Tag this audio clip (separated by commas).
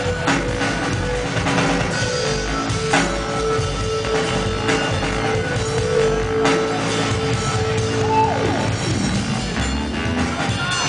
Music, Electronic music, Drum and bass